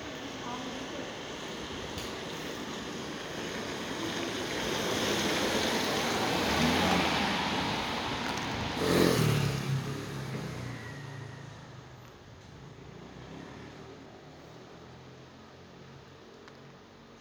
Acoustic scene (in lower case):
residential area